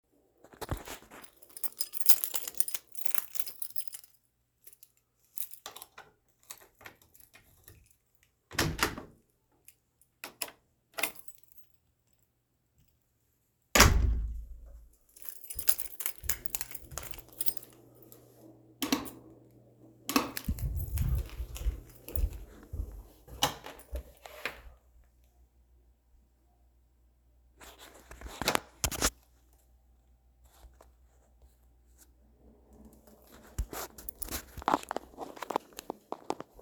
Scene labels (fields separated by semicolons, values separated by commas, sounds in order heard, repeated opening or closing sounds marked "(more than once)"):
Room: hallway; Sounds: keys, door (more than once), light switch, footsteps